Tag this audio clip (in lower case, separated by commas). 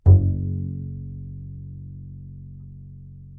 bowed string instrument, musical instrument, music